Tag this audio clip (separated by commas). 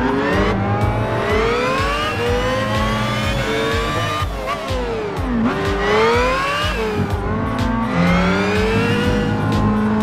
Music, Motor vehicle (road), Vehicle